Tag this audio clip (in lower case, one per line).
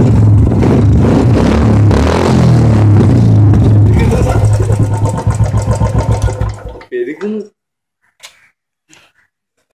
speech